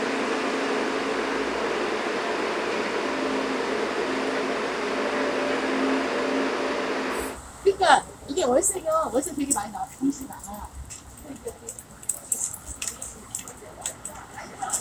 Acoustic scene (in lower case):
street